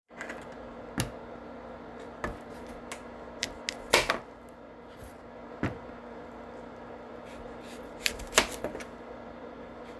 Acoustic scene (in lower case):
kitchen